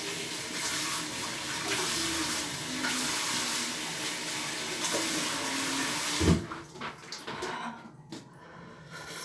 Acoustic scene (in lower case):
restroom